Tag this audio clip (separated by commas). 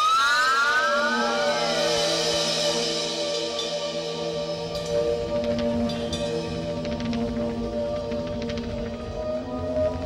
Music